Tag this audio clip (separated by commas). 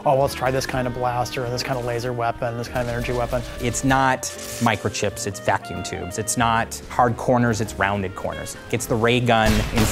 Speech, Music, Crackle